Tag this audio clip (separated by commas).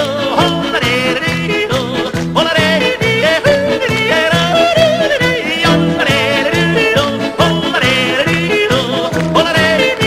yodelling